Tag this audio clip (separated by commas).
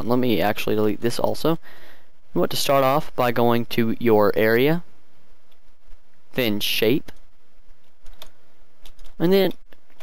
Speech